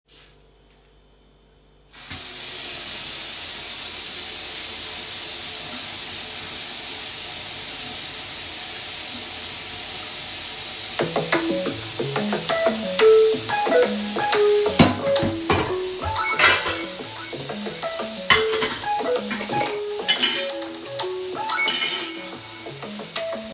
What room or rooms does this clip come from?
kitchen